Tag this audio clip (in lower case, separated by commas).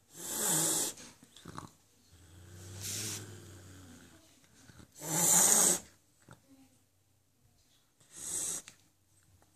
cat hissing